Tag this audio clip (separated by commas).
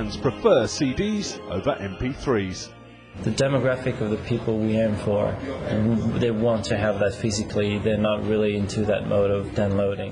Speech, Music